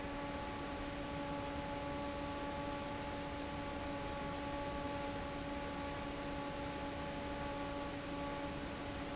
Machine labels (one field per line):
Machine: fan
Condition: normal